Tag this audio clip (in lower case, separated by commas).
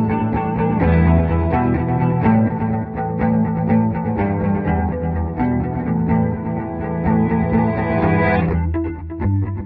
music